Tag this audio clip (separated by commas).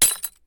Glass, Crushing, Shatter